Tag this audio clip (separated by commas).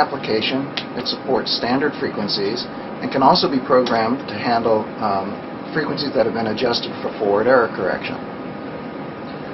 Speech